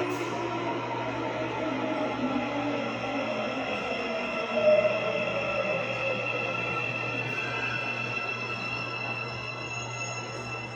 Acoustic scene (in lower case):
subway station